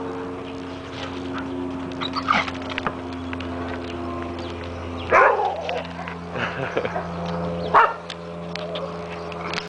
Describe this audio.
Engines hum in the distance as dogs bark and run then a man speaks